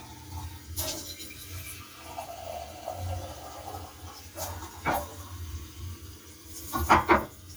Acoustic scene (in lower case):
kitchen